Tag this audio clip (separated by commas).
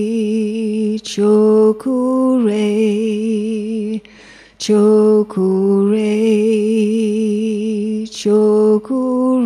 Mantra